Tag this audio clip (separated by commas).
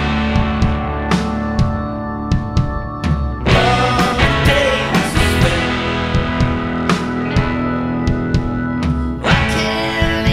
Music